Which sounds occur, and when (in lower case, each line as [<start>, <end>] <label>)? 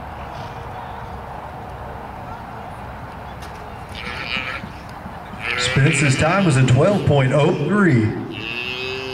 [0.00, 9.13] speech babble
[0.00, 9.13] mechanisms
[0.27, 0.47] snort (horse)
[3.34, 3.66] tap
[3.88, 4.64] moo
[4.01, 4.13] tap
[4.30, 4.39] tap
[4.54, 4.64] tap
[4.83, 5.06] tap
[5.27, 5.40] tap
[5.36, 8.21] male speech
[8.24, 9.13] moo